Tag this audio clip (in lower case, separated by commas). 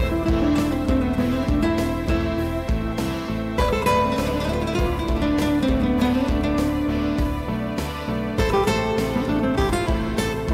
music